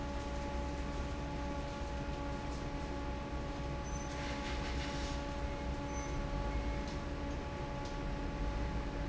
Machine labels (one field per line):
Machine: fan